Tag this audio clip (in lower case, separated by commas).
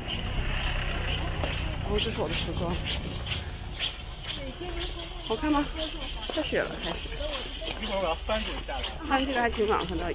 skiing